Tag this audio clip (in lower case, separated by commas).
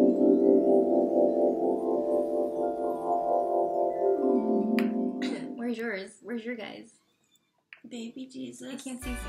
music, xylophone, vibraphone, speech